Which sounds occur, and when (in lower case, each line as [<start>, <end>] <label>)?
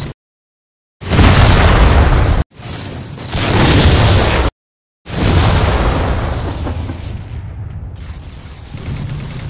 [0.00, 0.13] video game sound
[0.97, 2.52] explosion
[1.00, 4.51] video game sound
[3.19, 4.62] explosion
[5.00, 9.45] explosion
[5.04, 9.45] video game sound
[8.77, 9.45] sound effect